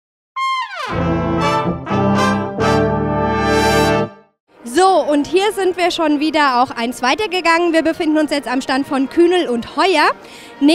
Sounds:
brass instrument, trombone, trumpet

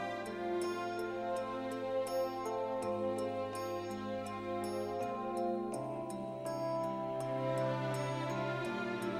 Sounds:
music

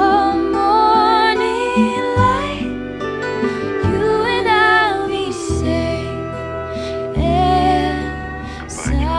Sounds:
sound effect, speech, music

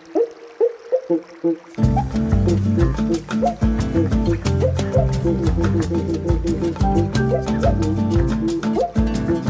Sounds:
music, jazz

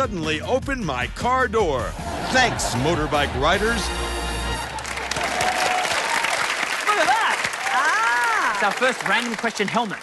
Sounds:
speech, music

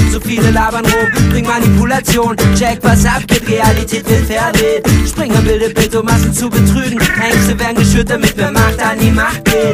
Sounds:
music

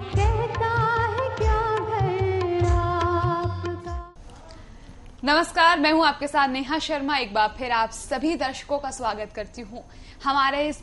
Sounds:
music, speech

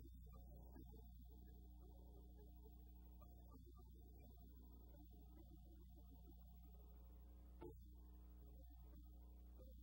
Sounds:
music

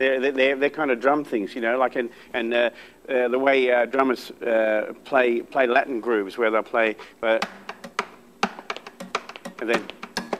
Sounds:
speech, music

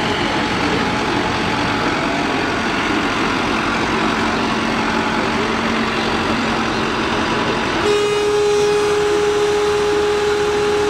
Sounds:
tractor digging

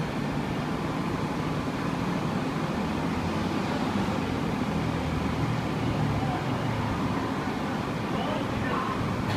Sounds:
speech

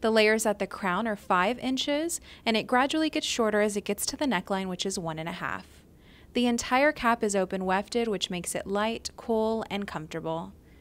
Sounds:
speech

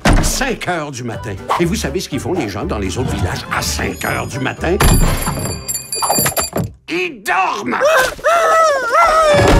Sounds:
music, speech

